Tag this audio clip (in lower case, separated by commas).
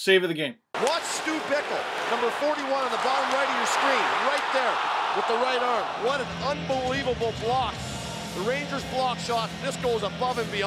music, speech